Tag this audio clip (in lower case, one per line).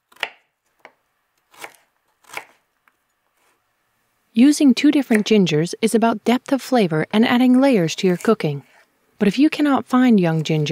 speech